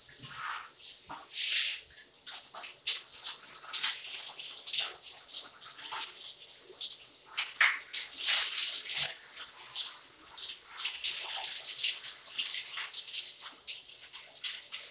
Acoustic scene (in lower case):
restroom